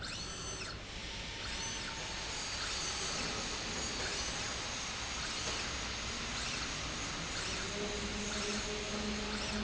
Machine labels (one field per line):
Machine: slide rail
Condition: normal